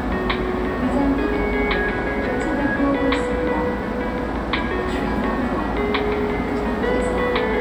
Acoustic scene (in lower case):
subway station